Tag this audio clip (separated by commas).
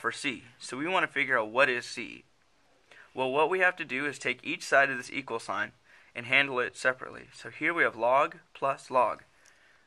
monologue, Speech